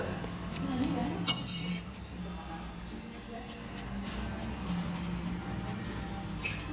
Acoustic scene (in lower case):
restaurant